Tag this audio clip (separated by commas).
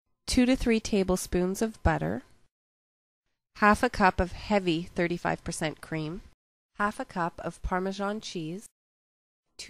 Speech